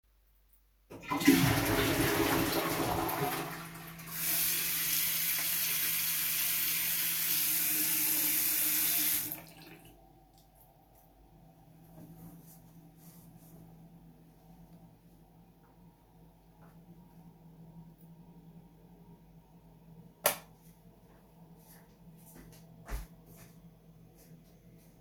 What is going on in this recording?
I'm in the bathroom, flushing the toilet. Then I washed my hands, wiped them on the towel, switched the lights off and left the room.